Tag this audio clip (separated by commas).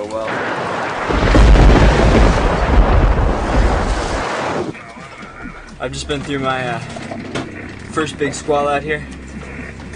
Vehicle, Music, Speech, Boat